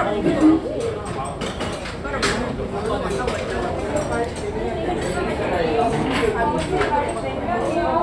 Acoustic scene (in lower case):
restaurant